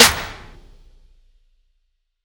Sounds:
music
hands
musical instrument
clapping
drum kit
percussion

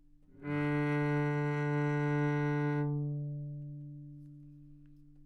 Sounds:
music
bowed string instrument
musical instrument

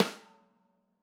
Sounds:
percussion
musical instrument
music
snare drum
drum

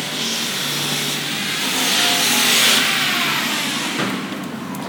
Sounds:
tools

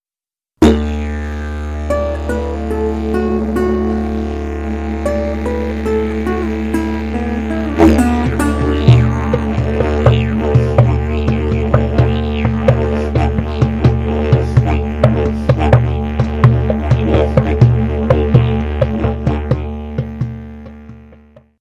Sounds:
music
musical instrument

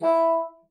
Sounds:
music
musical instrument
woodwind instrument

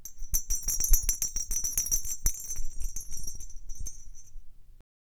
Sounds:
bell

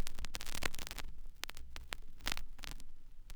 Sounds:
crackle

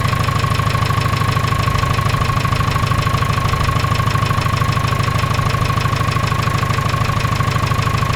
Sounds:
engine

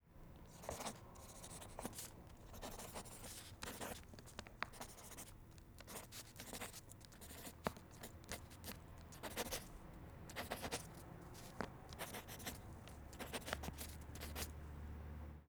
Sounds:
home sounds
writing

